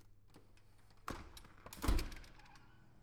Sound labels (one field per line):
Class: window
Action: opening